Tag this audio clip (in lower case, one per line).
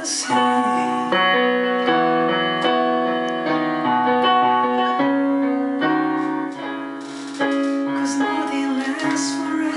music